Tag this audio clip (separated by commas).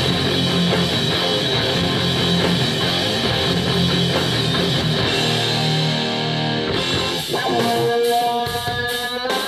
Plucked string instrument, Music, Guitar, Musical instrument